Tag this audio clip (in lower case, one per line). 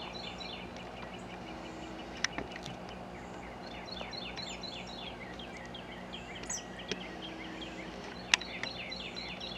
bird